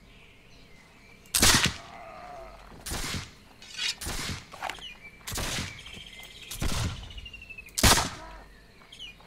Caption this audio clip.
Gunshot is fired and returned as birds sing in the background